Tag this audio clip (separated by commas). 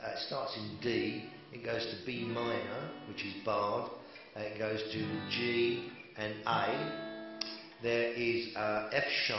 Speech, Plucked string instrument, Music, Acoustic guitar, Guitar, Musical instrument, Strum